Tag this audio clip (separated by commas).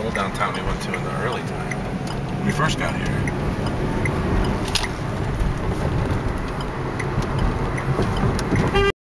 Speech